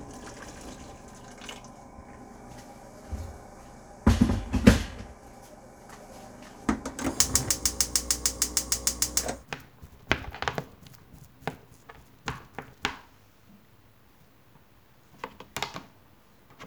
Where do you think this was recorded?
in a kitchen